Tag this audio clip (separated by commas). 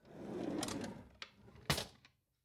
Drawer open or close, home sounds